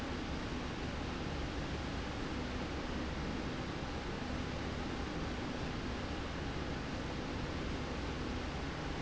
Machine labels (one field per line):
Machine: slide rail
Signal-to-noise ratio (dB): -6 dB